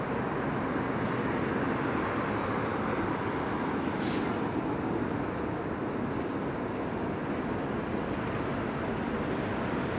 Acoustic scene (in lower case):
street